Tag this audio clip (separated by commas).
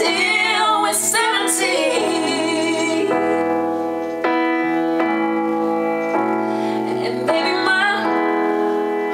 Keyboard (musical)